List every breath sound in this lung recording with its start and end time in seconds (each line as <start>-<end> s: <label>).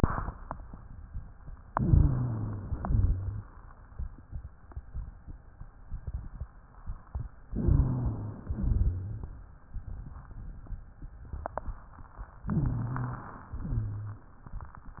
1.71-2.70 s: inhalation
1.71-2.70 s: wheeze
2.75-3.46 s: exhalation
2.75-3.46 s: wheeze
7.55-8.43 s: wheeze
7.55-8.56 s: inhalation
8.61-9.32 s: exhalation
8.61-9.32 s: wheeze
12.52-13.59 s: inhalation
12.52-13.59 s: wheeze
13.66-14.31 s: exhalation
13.66-14.31 s: wheeze